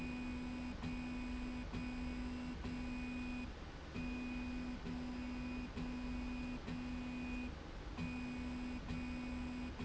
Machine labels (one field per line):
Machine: slide rail